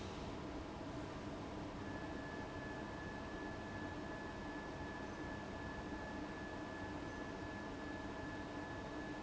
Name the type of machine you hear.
fan